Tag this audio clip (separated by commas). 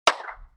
Clapping, Hands